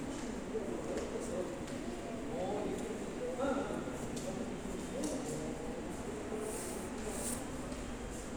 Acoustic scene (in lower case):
subway station